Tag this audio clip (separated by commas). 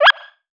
Animal